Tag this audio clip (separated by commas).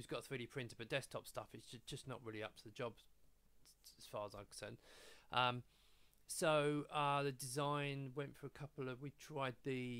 Speech